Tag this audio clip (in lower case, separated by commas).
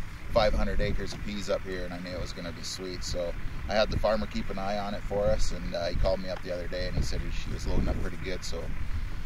speech